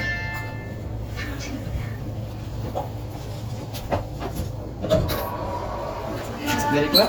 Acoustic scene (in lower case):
elevator